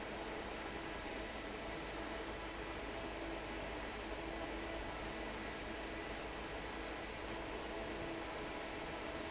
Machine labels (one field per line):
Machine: fan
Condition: normal